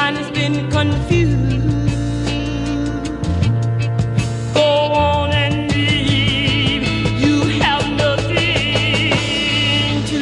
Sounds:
jingle (music)

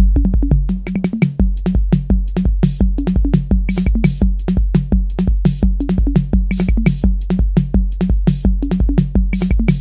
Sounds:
drum machine, sampler

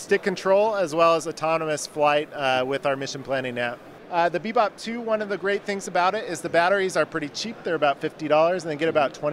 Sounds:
speech

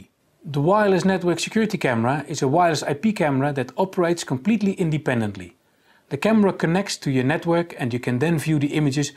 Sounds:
speech

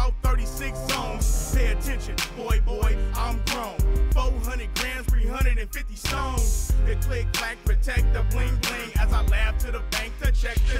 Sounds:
music, pop music

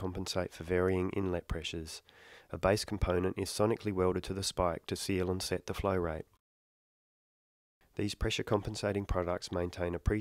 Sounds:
speech

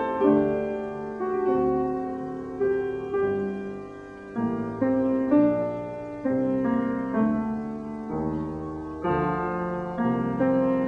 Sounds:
classical music, music

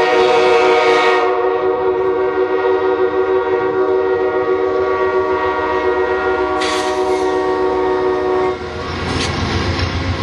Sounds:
train horn, train wagon, rail transport, train

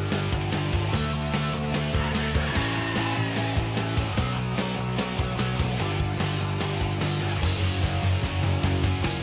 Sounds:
music

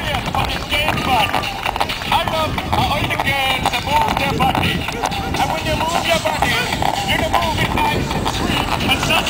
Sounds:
music, speech

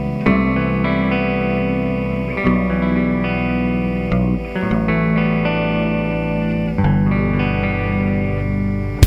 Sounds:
musical instrument, tender music, electronic music, plucked string instrument, guitar, trance music, strum, funk, bass guitar, music, electric guitar, pop music

